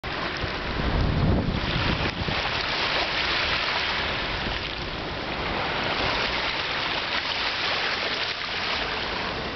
A stream is running